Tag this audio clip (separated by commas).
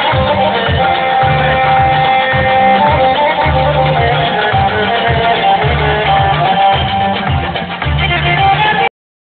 Music, Dance music